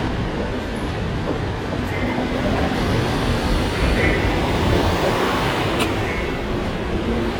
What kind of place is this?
subway station